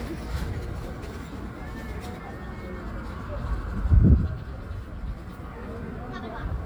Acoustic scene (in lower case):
park